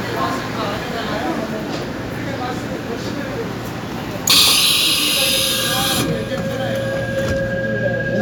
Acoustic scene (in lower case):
subway station